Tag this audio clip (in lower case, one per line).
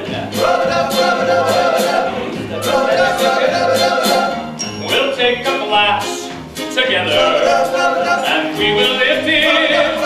music